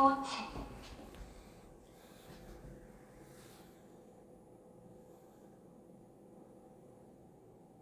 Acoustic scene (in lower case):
elevator